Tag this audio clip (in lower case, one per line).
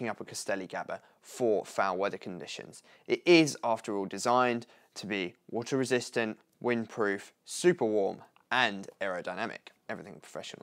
speech